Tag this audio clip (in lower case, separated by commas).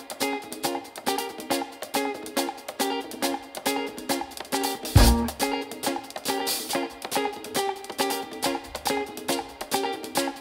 music